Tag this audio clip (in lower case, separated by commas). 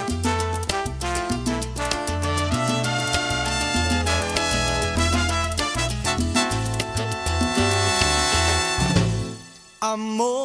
salsa music, song, playing saxophone, saxophone, soundtrack music, music, jazz